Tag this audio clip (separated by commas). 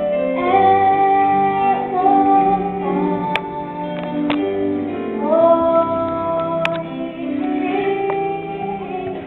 Child singing, Female singing, Music